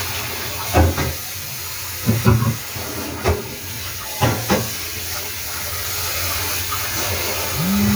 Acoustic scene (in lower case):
kitchen